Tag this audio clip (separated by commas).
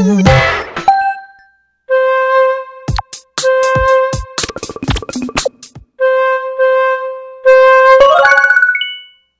Music